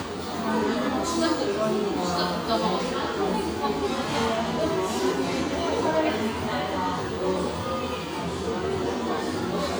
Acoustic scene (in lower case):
cafe